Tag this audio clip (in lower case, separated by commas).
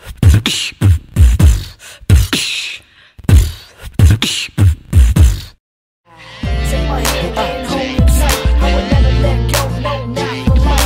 inside a small room, singing, hip hop music, music